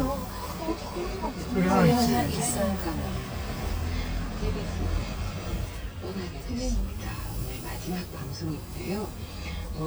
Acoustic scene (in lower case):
car